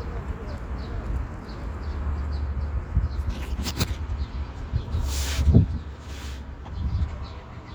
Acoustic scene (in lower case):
park